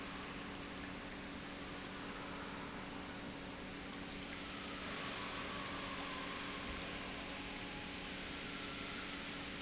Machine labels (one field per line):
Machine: pump